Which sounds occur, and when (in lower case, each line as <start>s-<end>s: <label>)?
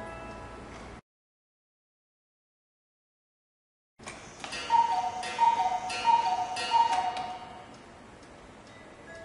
0.0s-1.0s: mechanisms
0.0s-1.0s: music
4.0s-9.2s: mechanisms
4.0s-4.1s: tick
4.4s-7.8s: bird call
4.4s-4.5s: generic impact sounds
6.9s-7.3s: generic impact sounds
7.7s-7.8s: tick
8.2s-8.3s: tick
8.6s-8.7s: tick
8.7s-9.2s: music
9.1s-9.2s: tick